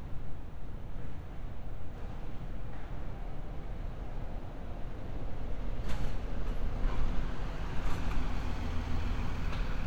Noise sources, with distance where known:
engine of unclear size, near

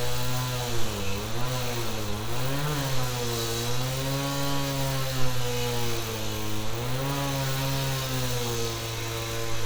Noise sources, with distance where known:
chainsaw

